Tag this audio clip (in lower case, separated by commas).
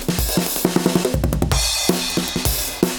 percussion, musical instrument, drum kit, music